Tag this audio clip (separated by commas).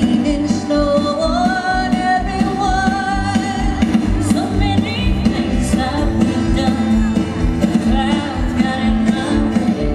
Music